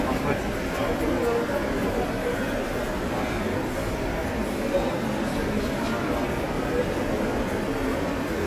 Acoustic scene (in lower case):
subway station